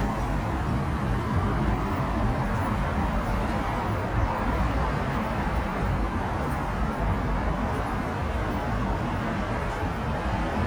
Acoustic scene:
street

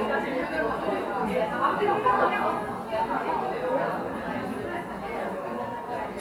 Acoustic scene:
cafe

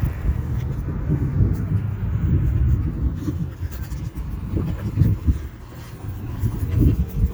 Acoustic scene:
street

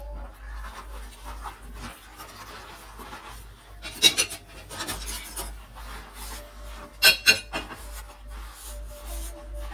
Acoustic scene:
kitchen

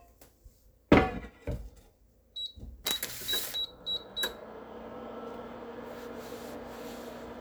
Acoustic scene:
kitchen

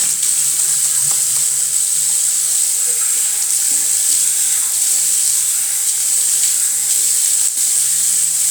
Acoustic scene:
restroom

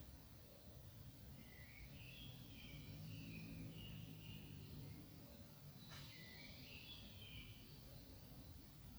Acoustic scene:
park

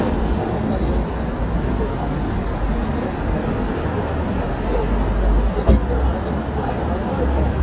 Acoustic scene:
street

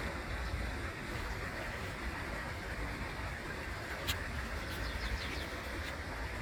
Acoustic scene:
park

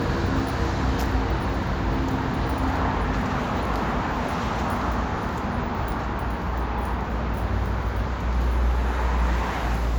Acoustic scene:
street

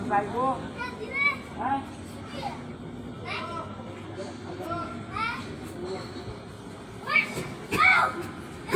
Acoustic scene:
park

